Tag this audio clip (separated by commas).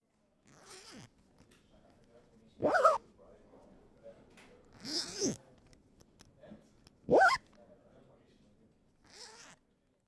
Zipper (clothing), Domestic sounds